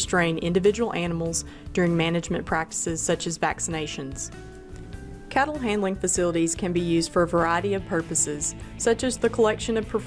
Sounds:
music, speech

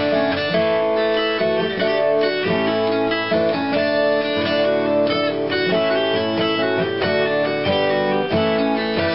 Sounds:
strum, musical instrument, fiddle, guitar, music, acoustic guitar, plucked string instrument

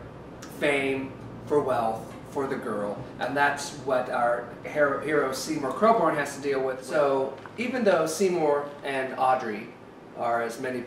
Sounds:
speech

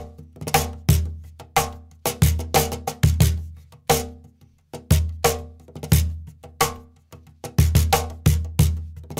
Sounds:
percussion, music

